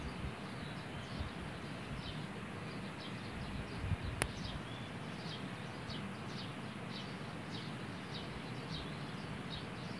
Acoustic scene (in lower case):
park